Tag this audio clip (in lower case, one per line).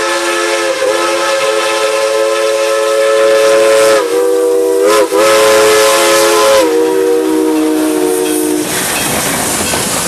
train whistling